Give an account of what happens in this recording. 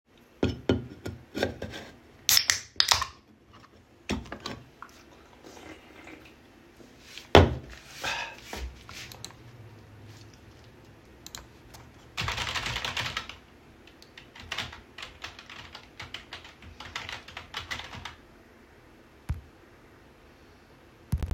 open the soda can taking asip and writing a email